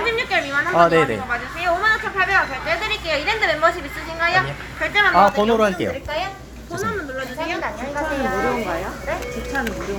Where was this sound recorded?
in a crowded indoor space